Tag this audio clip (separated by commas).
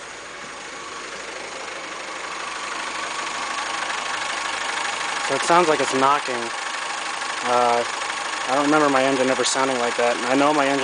Engine, Vehicle, Speech, Idling, Medium engine (mid frequency)